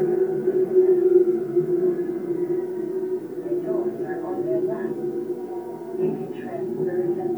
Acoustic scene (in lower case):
subway train